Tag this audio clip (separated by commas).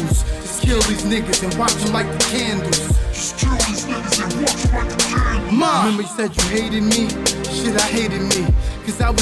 Music, Hip hop music